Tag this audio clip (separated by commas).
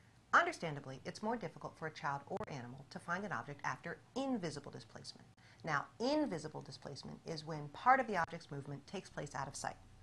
Speech, inside a small room